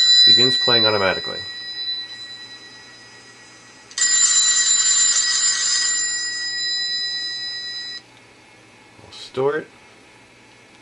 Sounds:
Speech, inside a small room

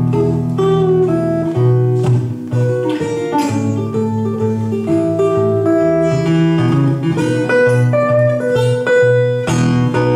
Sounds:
Plucked string instrument, Guitar, Musical instrument, Music, Blues

